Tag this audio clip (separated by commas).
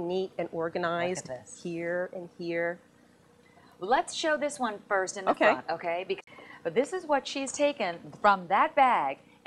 Speech, Television